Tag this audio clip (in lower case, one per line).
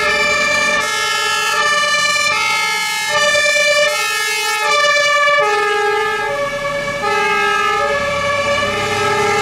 fire truck siren